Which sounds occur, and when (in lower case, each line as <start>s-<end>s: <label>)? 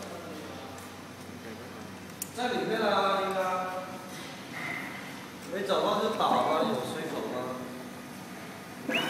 0.0s-9.0s: printer
2.3s-3.9s: man speaking
5.4s-7.7s: man speaking